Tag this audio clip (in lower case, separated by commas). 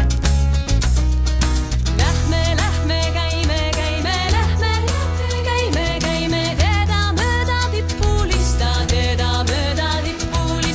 folk music, music of asia, music